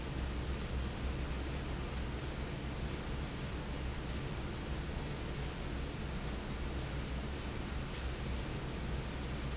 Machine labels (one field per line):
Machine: fan